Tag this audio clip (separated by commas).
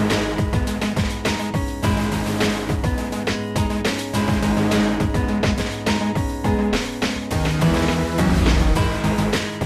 Music